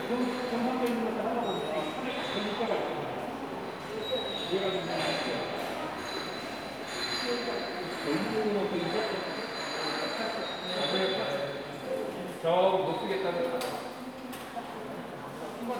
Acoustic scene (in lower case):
subway station